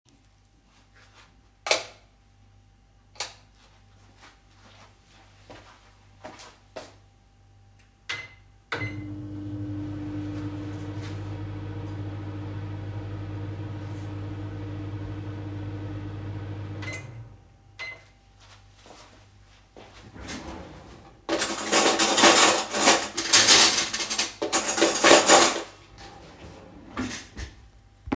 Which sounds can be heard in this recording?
light switch, microwave, footsteps, wardrobe or drawer, cutlery and dishes